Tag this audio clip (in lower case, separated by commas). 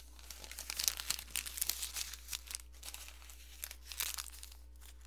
crumpling